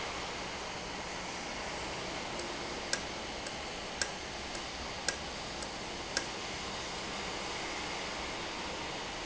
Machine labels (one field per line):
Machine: valve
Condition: normal